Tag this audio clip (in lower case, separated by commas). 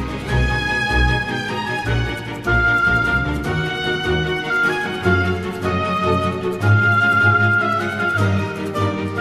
music